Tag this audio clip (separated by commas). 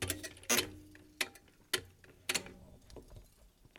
Thump